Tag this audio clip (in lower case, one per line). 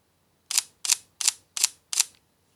mechanisms
camera